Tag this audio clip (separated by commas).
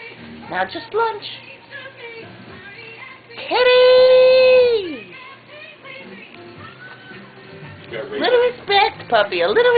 Music, Speech